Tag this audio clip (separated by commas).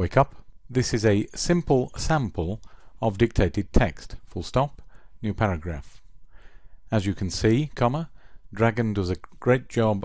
Narration, Speech, Male speech